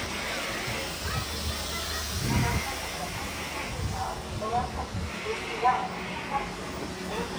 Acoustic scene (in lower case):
residential area